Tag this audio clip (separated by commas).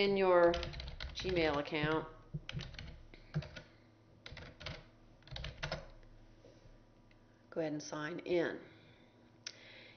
Speech